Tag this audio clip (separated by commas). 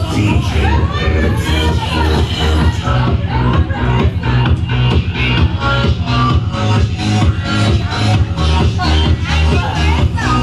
people shuffling